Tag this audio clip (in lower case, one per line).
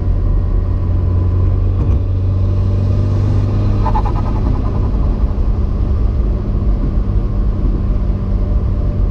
race car
car
vehicle